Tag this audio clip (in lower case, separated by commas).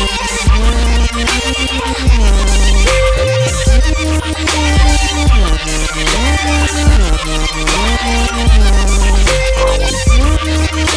music